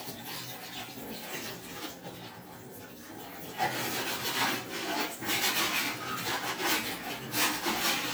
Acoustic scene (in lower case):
kitchen